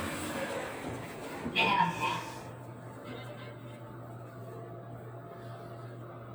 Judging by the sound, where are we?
in an elevator